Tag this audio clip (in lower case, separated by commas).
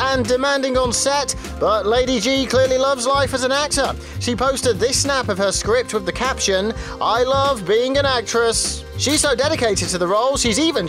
music, speech